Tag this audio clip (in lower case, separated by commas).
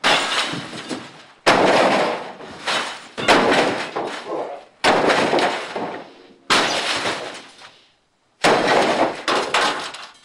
crash